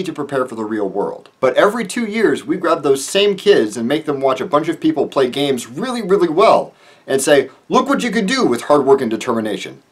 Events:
[0.00, 1.27] male speech
[0.00, 9.91] mechanisms
[1.39, 6.71] male speech
[6.68, 7.04] breathing
[7.05, 7.50] male speech
[7.43, 7.57] breathing
[7.68, 9.80] male speech
[9.91, 9.91] male speech

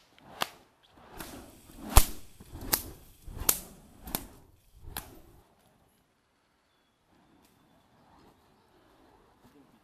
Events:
[0.14, 0.23] tick
[4.84, 5.17] whip
[8.00, 9.12] bird song
[9.36, 9.57] generic impact sounds

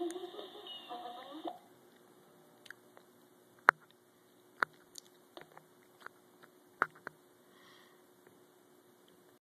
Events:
[0.00, 1.51] television
[0.00, 9.36] mechanisms
[7.47, 8.04] breathing
[9.03, 9.09] clicking

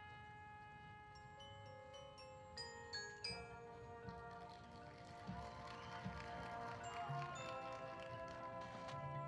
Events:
[0.00, 9.25] music
[4.17, 4.79] walk
[5.07, 8.39] clapping
[5.13, 5.75] cheering
[5.61, 6.62] whistling

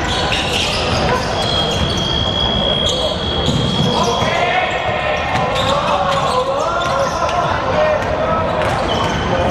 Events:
[0.00, 2.40] squeal
[0.00, 9.50] speech noise
[1.00, 1.16] basketball bounce
[1.30, 4.38] whistle
[1.63, 1.86] basketball bounce
[2.77, 4.34] squeal
[3.37, 3.84] thump
[3.80, 8.61] shout
[5.27, 5.42] basketball bounce
[5.48, 5.87] squeal
[6.01, 6.20] basketball bounce
[6.07, 7.25] squeal
[6.75, 6.89] basketball bounce
[7.18, 7.33] basketball bounce
[7.90, 8.12] basketball bounce
[8.52, 9.10] basketball bounce
[8.79, 9.27] squeal
[9.48, 9.50] squeal

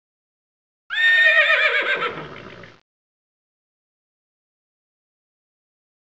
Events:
[0.89, 2.82] background noise
[0.90, 2.75] neigh

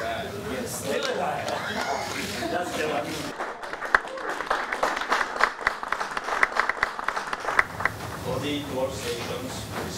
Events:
[0.00, 0.67] man speaking
[0.00, 3.31] mechanisms
[0.78, 1.54] man speaking
[0.93, 1.08] generic impact sounds
[1.38, 1.53] hands
[2.31, 3.28] man speaking
[3.34, 8.05] applause
[4.07, 4.49] man speaking
[7.52, 9.95] mechanisms
[8.20, 9.48] man speaking
[9.01, 9.27] generic impact sounds
[9.39, 9.55] generic impact sounds
[9.69, 9.95] man speaking
[9.70, 9.86] generic impact sounds

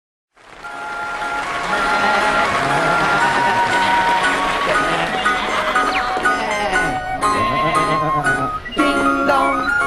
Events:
[0.27, 9.85] mechanisms
[0.61, 9.85] ice cream truck
[1.61, 4.14] bleat
[4.65, 5.97] bleat
[6.17, 6.98] bleat
[7.17, 8.54] bleat
[8.75, 9.78] female singing

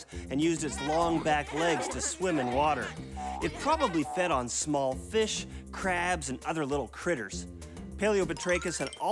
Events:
[0.00, 0.23] breathing
[0.00, 9.11] music
[0.28, 2.91] man speaking
[0.58, 2.96] laughter
[0.80, 1.20] boing
[1.50, 1.93] boing
[2.21, 2.88] boing
[2.92, 3.14] breathing
[3.10, 3.45] boing
[3.36, 5.41] man speaking
[3.39, 4.08] laughter
[4.03, 4.45] boing
[5.46, 5.61] breathing
[5.72, 7.45] man speaking
[7.57, 7.87] breathing
[7.94, 9.11] man speaking
[8.34, 9.00] sound effect

